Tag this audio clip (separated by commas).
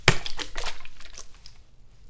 Splash, Liquid